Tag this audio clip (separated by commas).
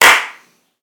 Hands, Clapping